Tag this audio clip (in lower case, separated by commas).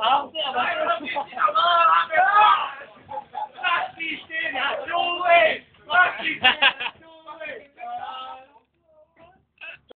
speech